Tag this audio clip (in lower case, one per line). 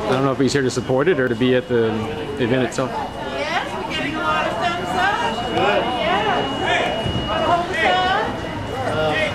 speech